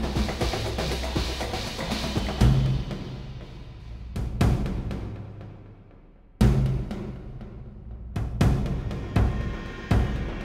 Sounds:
Music, Timpani

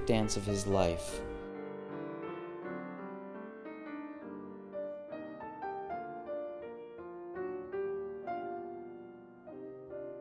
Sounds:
Speech, Music

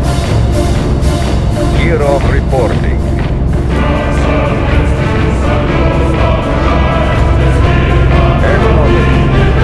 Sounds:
Theme music

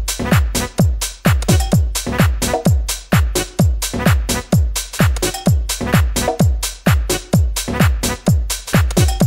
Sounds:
Music, Electronic music, Techno

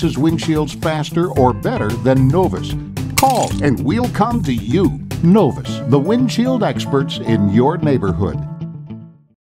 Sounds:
Music, Speech

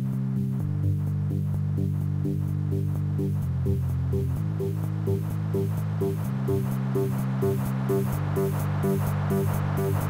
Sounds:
Electronic music, Techno, Music

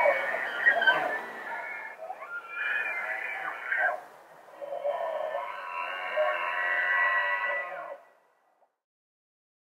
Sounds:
elk bugling

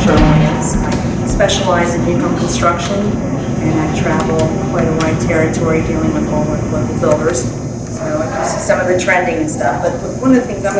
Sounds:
Speech

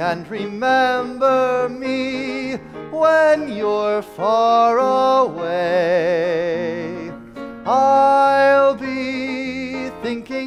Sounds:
Music, Traditional music

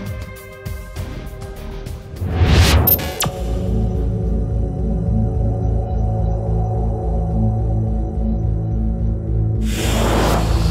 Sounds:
Music

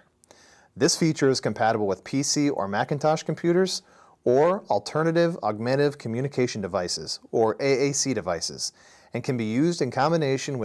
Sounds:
Speech

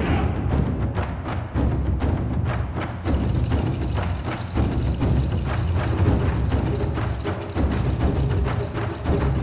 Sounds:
Music, Background music, Pop music

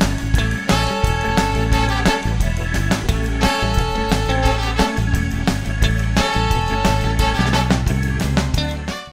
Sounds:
Music

